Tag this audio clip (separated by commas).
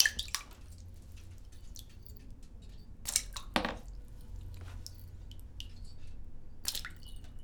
splatter, Liquid, Water